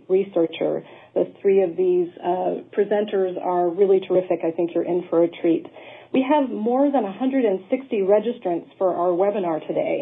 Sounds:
speech

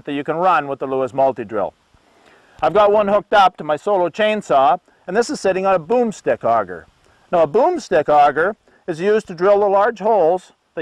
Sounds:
speech

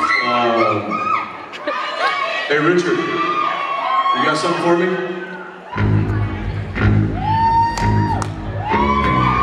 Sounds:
music, speech

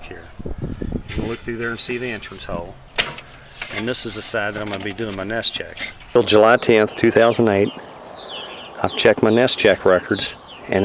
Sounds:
bird, speech

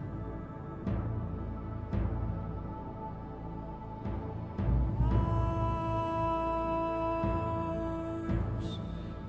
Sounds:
male singing, music

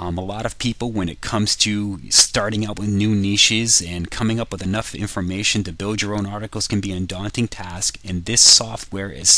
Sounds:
speech

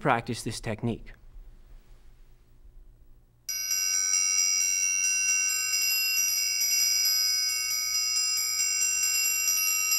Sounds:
tinkle

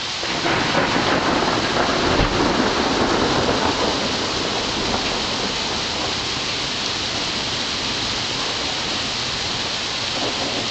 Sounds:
rain on surface

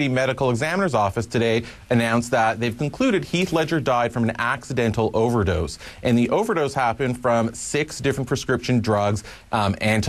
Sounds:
speech

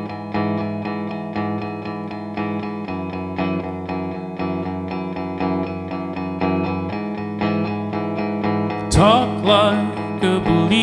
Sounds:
singing, effects unit, inside a large room or hall, music

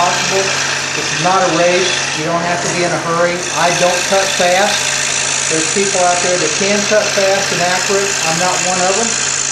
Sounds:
power tool, tools

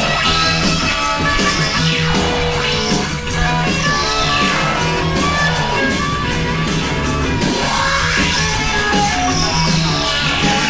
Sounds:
rock music, music, progressive rock

